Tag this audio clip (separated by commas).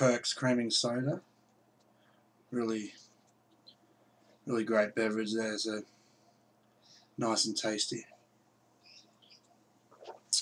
Speech